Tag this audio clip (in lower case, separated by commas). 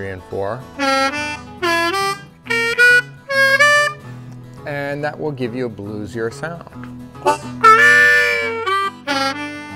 playing harmonica